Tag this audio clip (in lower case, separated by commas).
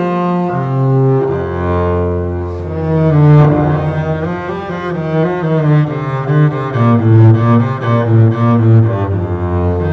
playing cello, double bass, cello, bowed string instrument